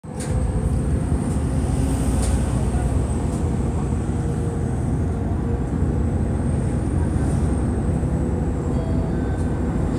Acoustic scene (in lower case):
bus